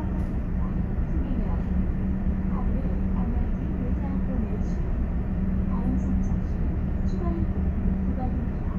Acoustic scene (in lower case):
bus